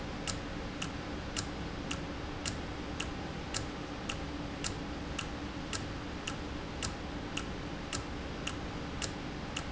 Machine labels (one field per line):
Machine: valve